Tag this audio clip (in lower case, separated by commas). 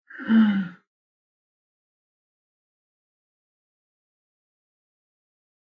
sigh, human voice